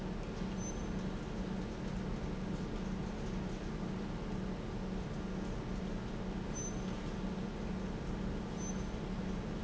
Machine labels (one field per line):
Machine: pump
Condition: normal